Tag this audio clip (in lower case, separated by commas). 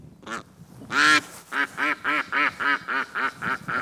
wild animals, animal, bird